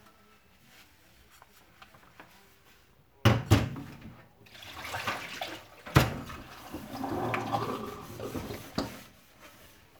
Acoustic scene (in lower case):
kitchen